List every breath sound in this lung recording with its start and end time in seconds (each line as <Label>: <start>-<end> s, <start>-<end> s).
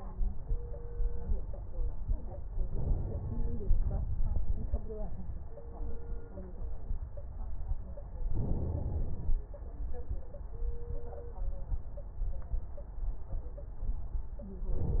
Inhalation: 2.67-3.77 s, 8.28-9.38 s, 14.74-15.00 s
Exhalation: 3.79-4.89 s
Crackles: 3.80-4.90 s